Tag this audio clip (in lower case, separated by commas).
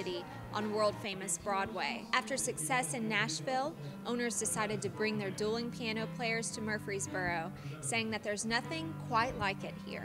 speech, music